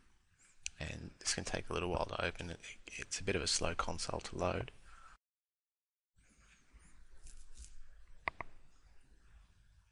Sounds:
Speech

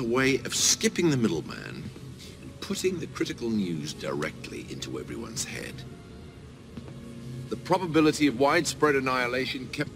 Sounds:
Music, Speech, man speaking, monologue

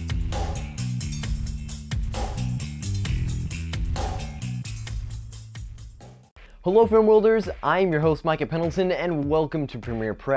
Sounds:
Music, Speech

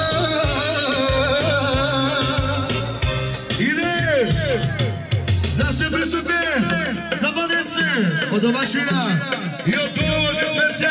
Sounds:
Speech, Music

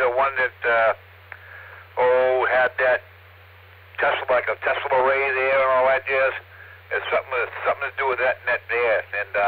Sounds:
Radio, Speech

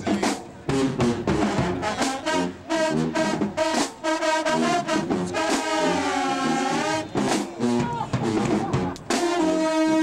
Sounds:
Speech, Music

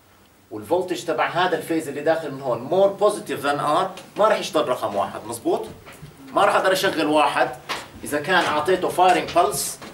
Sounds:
Speech, inside a small room

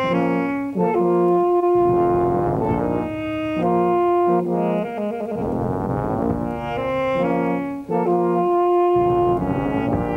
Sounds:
Music

